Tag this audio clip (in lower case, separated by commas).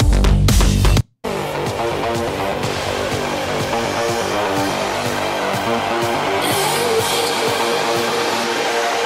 music